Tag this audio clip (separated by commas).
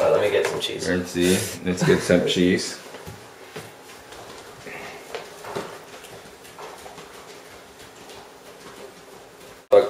Speech